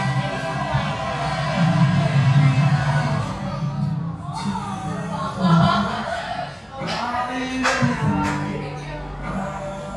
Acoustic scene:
cafe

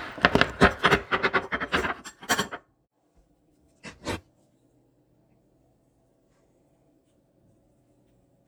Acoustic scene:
kitchen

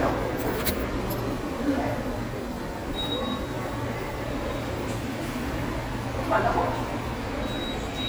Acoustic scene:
subway station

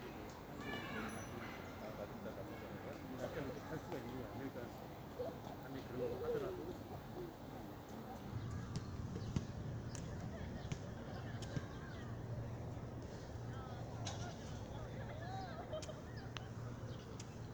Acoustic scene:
park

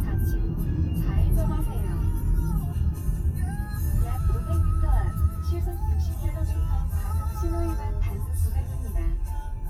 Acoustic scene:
car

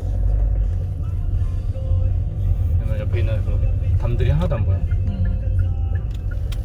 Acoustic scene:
car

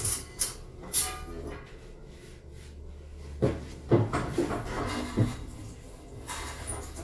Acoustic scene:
elevator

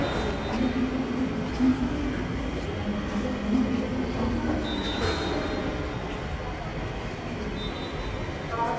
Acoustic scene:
subway station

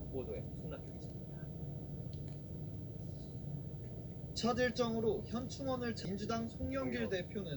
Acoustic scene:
car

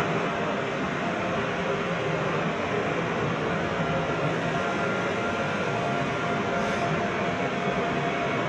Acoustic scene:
subway train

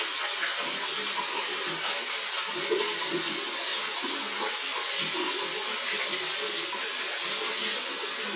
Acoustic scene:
restroom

